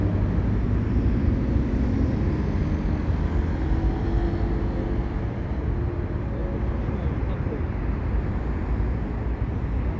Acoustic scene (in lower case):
street